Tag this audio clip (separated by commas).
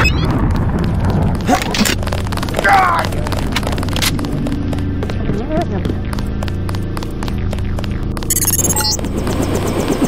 Run, Speech, Music